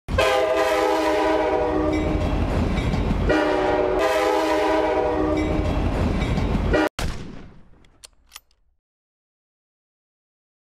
A horn blows as a train rolls by on the tracks